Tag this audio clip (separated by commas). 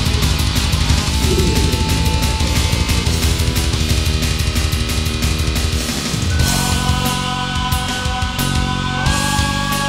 Video game music, Music